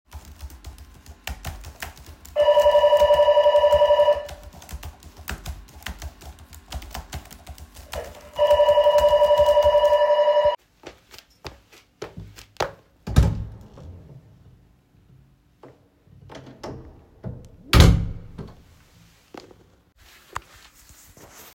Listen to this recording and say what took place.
While working with my keyboard in the Homeoffice, the door bell rang, I walk towards the door, open and then close the door